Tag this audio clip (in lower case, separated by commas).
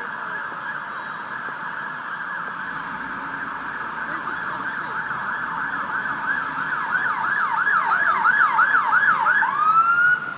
speech